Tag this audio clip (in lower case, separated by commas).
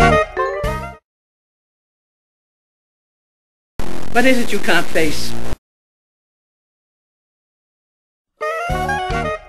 speech, music